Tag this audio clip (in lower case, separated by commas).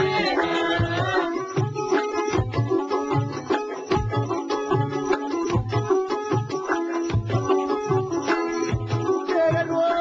music